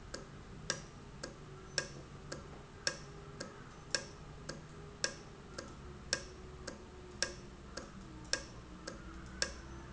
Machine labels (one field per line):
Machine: valve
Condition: normal